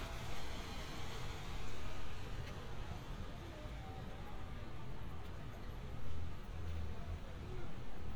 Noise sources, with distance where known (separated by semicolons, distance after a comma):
medium-sounding engine, far